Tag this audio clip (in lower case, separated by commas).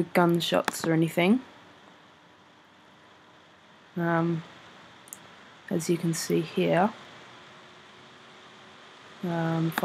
speech, zipper (clothing)